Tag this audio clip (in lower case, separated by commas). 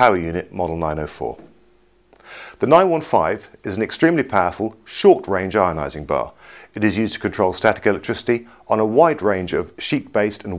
speech